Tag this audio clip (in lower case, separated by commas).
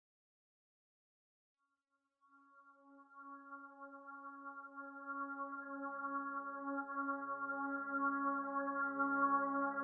music